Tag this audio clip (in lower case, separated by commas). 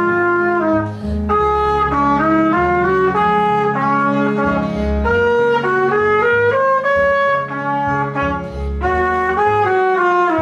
playing trumpet